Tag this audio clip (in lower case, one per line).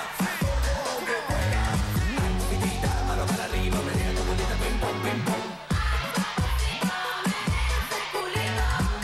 music